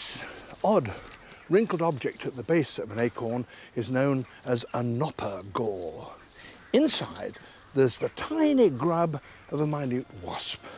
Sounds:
speech

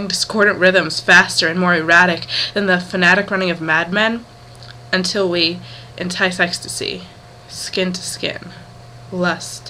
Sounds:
speech

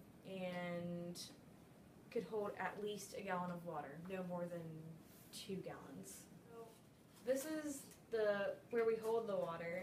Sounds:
speech

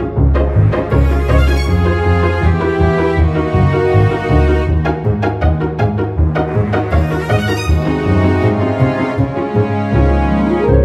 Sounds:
music
electronic music

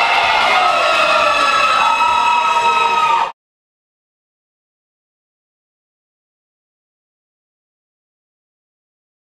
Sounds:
speech

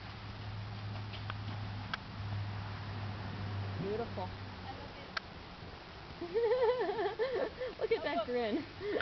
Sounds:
speech

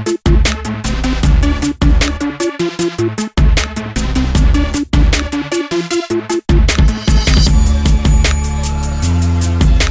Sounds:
music

